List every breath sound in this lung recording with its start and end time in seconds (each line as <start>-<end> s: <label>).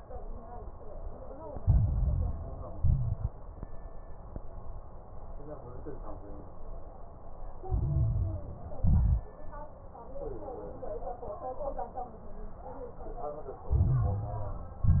1.59-2.75 s: inhalation
1.59-2.75 s: crackles
2.76-3.29 s: exhalation
2.76-3.29 s: crackles
7.68-8.83 s: inhalation
7.68-8.83 s: crackles
8.86-9.25 s: exhalation
8.86-9.25 s: crackles
13.68-14.84 s: inhalation
13.68-14.84 s: crackles
14.86-15.00 s: exhalation
14.86-15.00 s: crackles